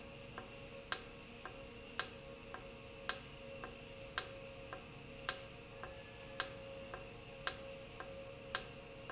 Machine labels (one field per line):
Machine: valve